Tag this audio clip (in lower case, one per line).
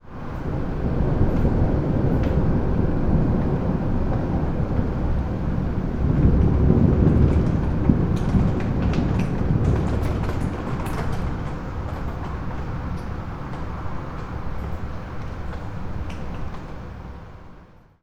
thunder
thunderstorm